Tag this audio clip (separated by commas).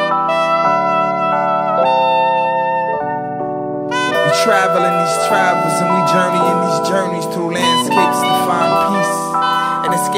Music, Saxophone